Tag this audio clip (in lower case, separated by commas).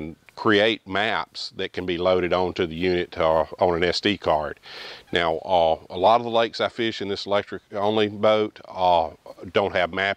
speech